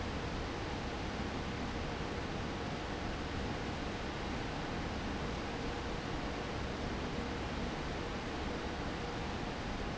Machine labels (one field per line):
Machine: fan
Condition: abnormal